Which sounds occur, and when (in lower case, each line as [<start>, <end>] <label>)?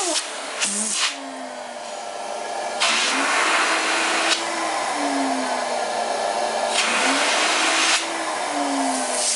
[0.00, 9.35] vacuum cleaner